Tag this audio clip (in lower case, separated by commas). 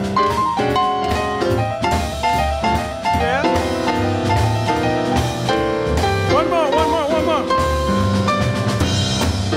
music, speech